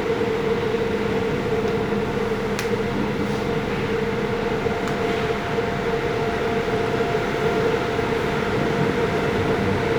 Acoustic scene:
subway train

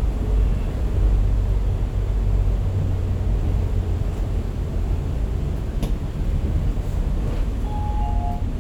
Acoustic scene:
bus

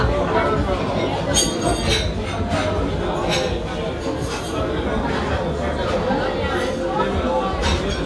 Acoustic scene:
restaurant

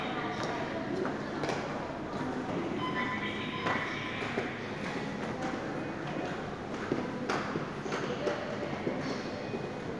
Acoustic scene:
subway station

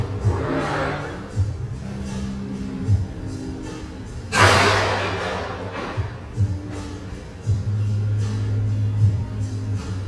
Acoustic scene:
cafe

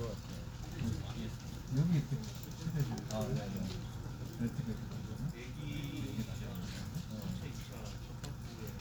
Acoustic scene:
crowded indoor space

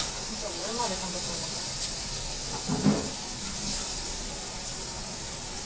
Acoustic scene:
restaurant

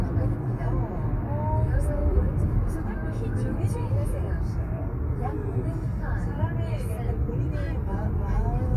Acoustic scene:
car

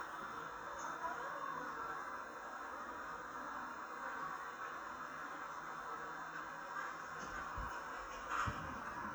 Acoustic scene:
park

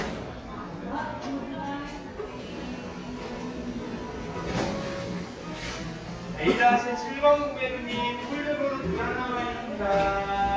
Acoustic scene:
cafe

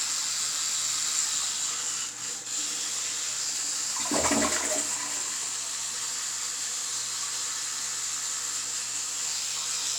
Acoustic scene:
restroom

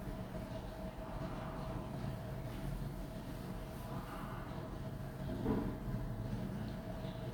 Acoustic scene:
elevator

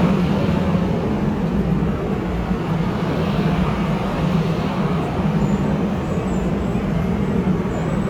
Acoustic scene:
subway station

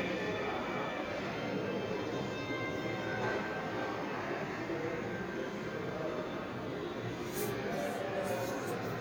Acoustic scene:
subway station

